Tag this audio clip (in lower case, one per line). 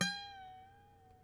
music
musical instrument
harp